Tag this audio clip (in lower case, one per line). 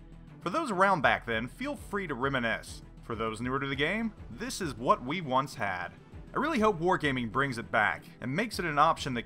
speech
music